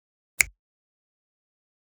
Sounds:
Finger snapping, Hands

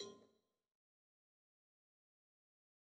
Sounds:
Cowbell, Bell

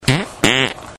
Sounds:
Fart

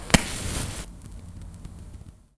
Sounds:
Fire

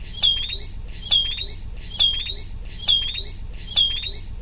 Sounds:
Bird, Animal, Wild animals

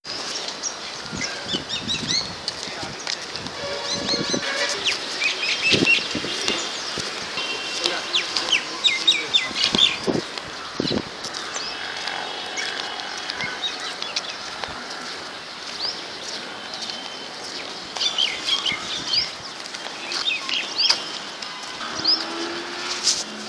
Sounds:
Wild animals, bird song, Animal, Bird

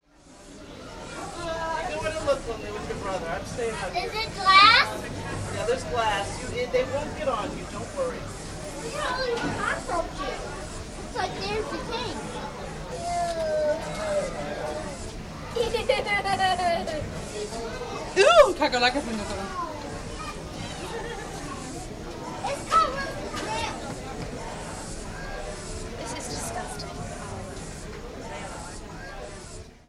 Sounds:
Animal, Wild animals, Insect

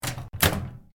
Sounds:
Microwave oven, home sounds

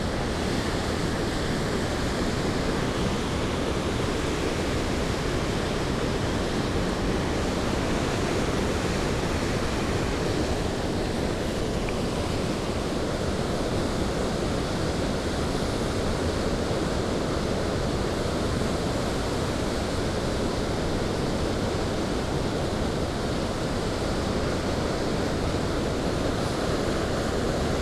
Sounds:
Water

